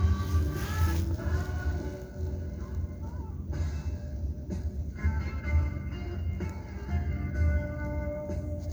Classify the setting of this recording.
car